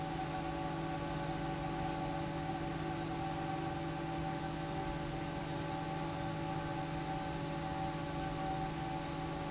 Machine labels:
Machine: fan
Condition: normal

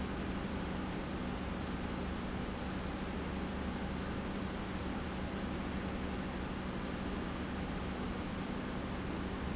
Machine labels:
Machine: pump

